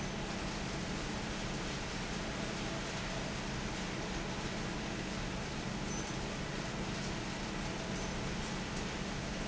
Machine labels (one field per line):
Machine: fan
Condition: normal